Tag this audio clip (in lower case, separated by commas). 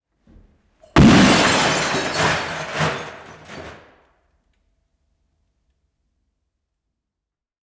explosion, shatter, glass